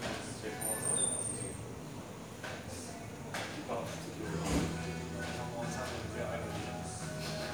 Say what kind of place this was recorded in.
cafe